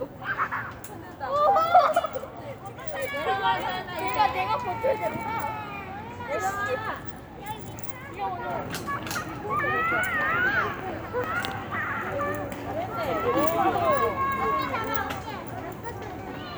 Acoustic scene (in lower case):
residential area